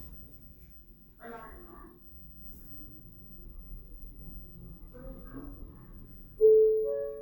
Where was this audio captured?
in an elevator